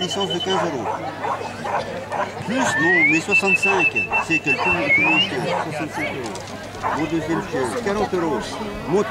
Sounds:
Animal, Speech, Domestic animals

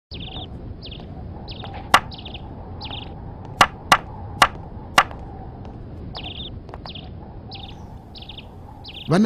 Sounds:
Speech, outside, rural or natural, Knock

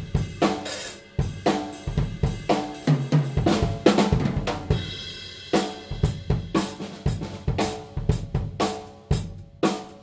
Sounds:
Bass drum, Drum, Percussion, Cymbal, Snare drum, Drum kit, playing drum kit, Rimshot, Hi-hat

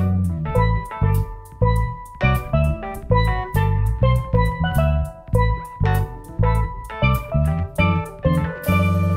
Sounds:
Drum kit, Guitar, Drum, Percussion, Plucked string instrument, Funk, Musical instrument, Bass guitar, Jazz, Music

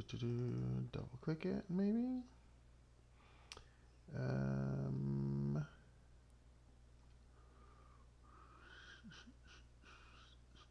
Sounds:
Speech

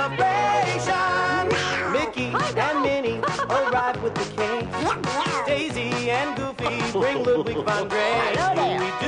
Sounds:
Music, Speech, Quack, Animal

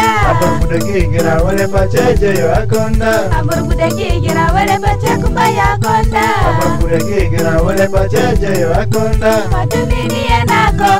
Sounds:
Music, Soul music

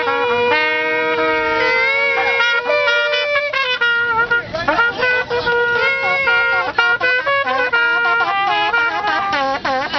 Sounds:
Shofar, Wind instrument

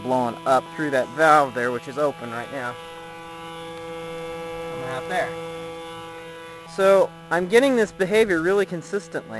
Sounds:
Speech, Vehicle

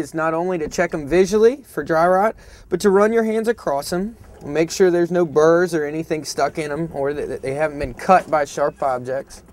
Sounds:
Speech

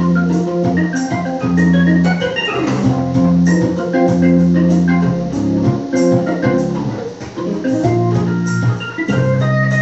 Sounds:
Organ, Electronic organ

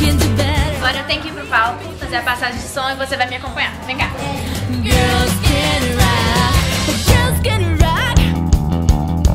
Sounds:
Music, Speech

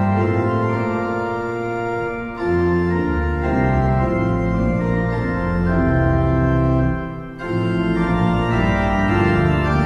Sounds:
playing electronic organ

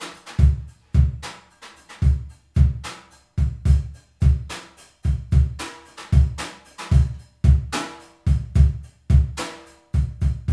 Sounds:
playing bass drum

